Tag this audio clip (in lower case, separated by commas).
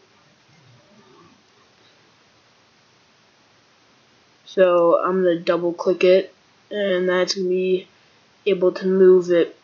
speech